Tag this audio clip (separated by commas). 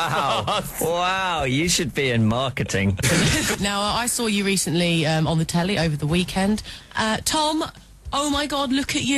Speech